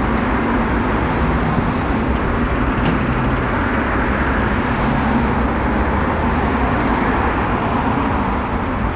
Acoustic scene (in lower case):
street